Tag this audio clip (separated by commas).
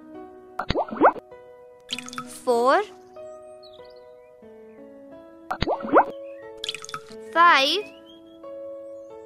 Music, Speech, Child speech